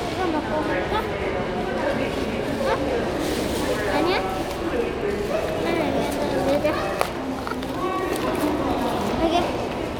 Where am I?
in a crowded indoor space